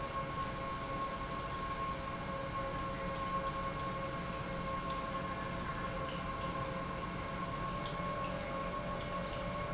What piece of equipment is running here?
pump